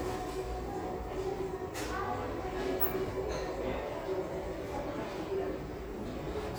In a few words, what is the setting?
elevator